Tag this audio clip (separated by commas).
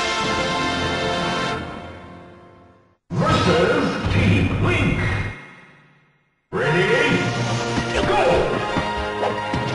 Music, Speech, Smash